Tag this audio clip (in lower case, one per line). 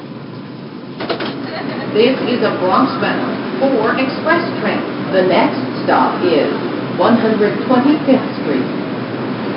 subway
vehicle
rail transport